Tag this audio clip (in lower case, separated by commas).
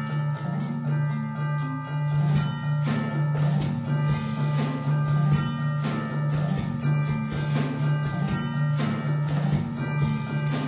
drum, percussion, mallet percussion, xylophone, glockenspiel